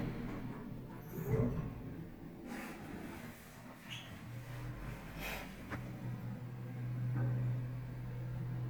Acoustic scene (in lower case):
elevator